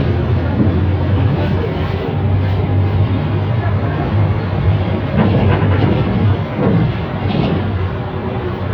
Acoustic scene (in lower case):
bus